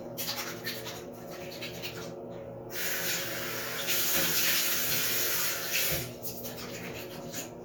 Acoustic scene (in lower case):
restroom